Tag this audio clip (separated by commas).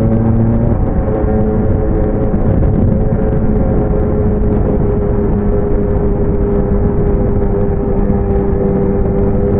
Motorcycle, Car, Vehicle